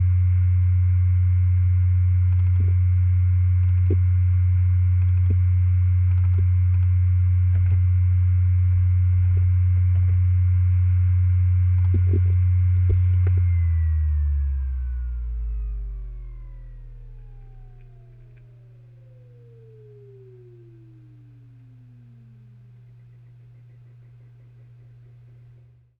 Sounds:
Domestic sounds

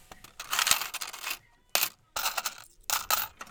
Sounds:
Coin (dropping), home sounds, Mechanisms

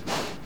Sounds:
Animal, livestock

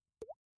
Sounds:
Drip, Raindrop, Liquid, Rain, Water

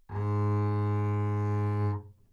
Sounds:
Musical instrument, Music, Bowed string instrument

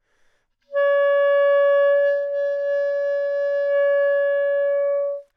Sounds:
Musical instrument, Music, Wind instrument

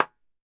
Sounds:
Clapping, Hands

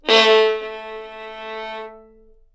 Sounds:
Music, Bowed string instrument, Musical instrument

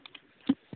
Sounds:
Telephone, Alarm

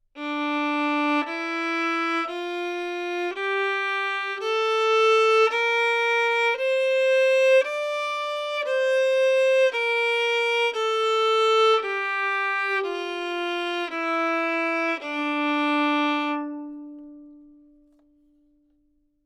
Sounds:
Musical instrument, Music, Bowed string instrument

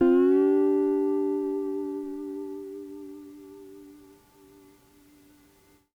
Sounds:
Musical instrument, Guitar, Music, Plucked string instrument

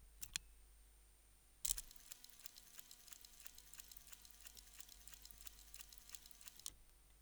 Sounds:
Mechanisms

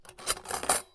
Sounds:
Cutlery, Domestic sounds

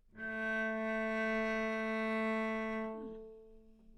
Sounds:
Music, Musical instrument, Bowed string instrument

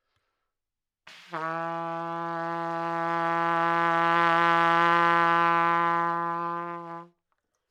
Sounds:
Music, Trumpet, Musical instrument, Brass instrument

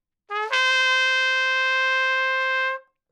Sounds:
Trumpet, Music, Brass instrument, Musical instrument

